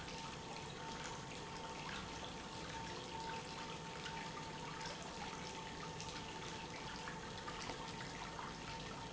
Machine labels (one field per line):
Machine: pump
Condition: normal